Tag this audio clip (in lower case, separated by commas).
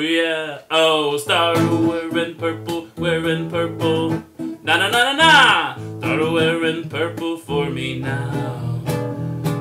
plucked string instrument, guitar, singing, music, musical instrument, acoustic guitar